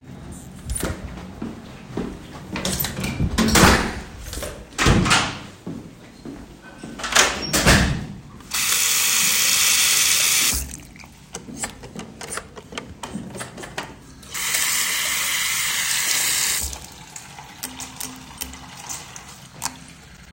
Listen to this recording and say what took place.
I opened the bathroom door and walked inside. Then I turned on the tap and running water is audible for a while. I used the soap dispenser and turned the tap off.